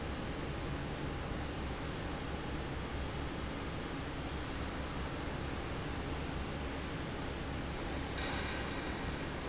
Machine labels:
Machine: fan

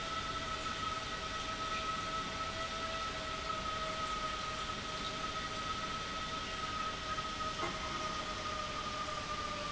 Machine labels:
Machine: pump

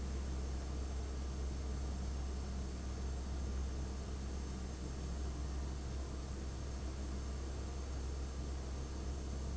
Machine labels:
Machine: fan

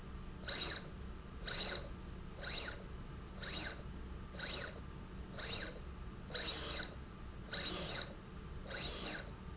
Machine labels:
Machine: slide rail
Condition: abnormal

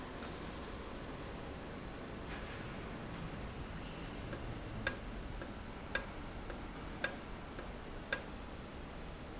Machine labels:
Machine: valve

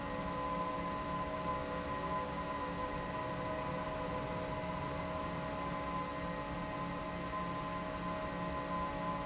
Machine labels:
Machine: fan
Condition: normal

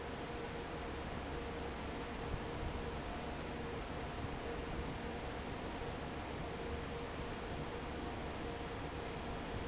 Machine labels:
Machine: fan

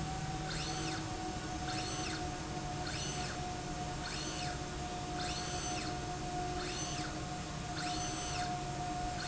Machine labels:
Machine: slide rail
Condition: normal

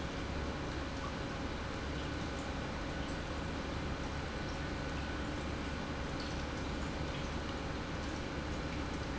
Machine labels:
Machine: pump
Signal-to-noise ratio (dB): -6 dB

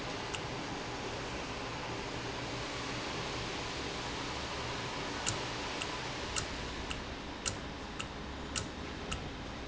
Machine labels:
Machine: valve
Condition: normal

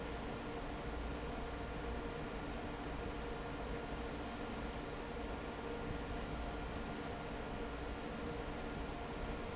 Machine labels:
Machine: fan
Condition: normal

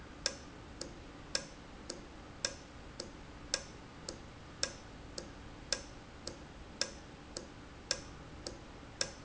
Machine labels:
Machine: valve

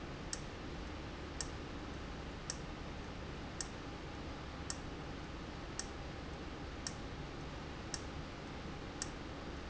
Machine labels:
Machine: valve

